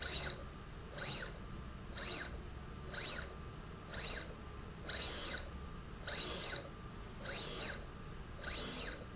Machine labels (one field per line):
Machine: slide rail